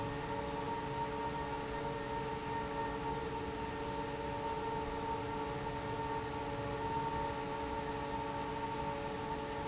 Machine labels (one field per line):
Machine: fan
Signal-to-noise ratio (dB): -6 dB